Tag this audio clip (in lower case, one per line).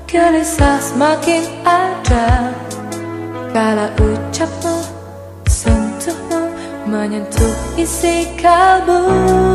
music